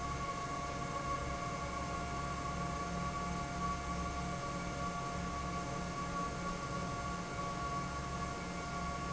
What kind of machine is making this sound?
fan